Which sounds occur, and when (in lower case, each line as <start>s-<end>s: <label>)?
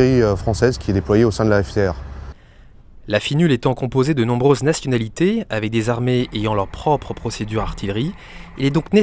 0.0s-1.9s: male speech
0.0s-9.0s: wind
2.3s-2.7s: breathing
3.0s-8.2s: male speech
6.0s-8.9s: truck
8.1s-8.5s: breathing
8.5s-9.0s: male speech